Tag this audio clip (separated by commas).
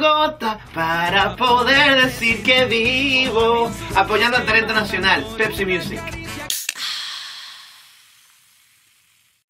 Music, Speech